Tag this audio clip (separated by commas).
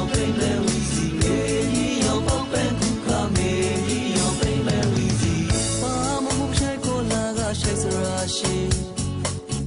New-age music, Music